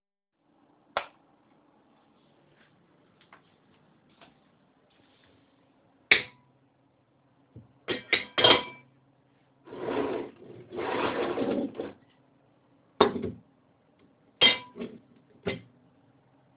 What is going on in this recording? I turn on the light in the kitchen, then I place cutlery on a plate and move the dishes slightly on the table.